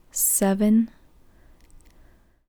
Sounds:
Human voice, Speech, woman speaking

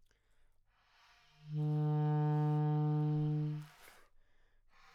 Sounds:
Musical instrument, Music, woodwind instrument

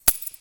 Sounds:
Keys jangling, home sounds

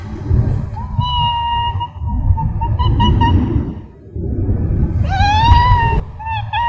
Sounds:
Domestic animals, Cat, Meow, Animal

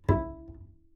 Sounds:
Musical instrument, Bowed string instrument, Music

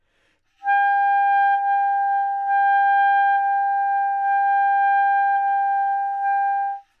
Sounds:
woodwind instrument, Musical instrument, Music

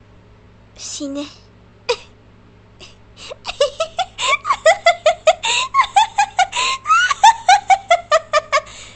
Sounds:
Laughter, Human voice

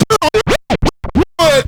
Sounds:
Scratching (performance technique), Music, Musical instrument

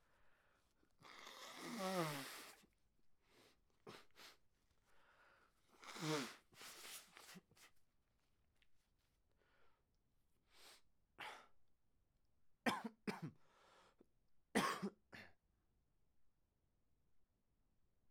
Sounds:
Respiratory sounds, Cough

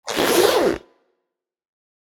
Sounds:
Zipper (clothing), home sounds

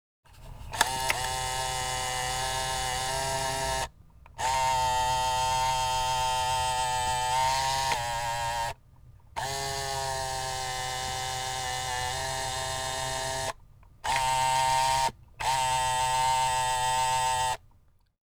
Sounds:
Camera, Mechanisms

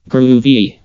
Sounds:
Speech synthesizer, Human voice, Speech

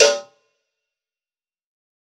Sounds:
Bell, Cowbell

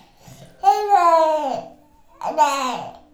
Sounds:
Speech, Human voice

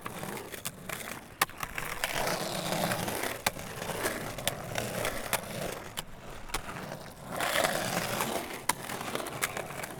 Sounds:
Vehicle, Skateboard

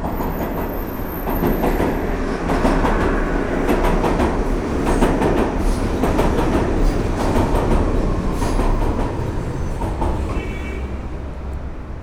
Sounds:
Rail transport, Vehicle, underground

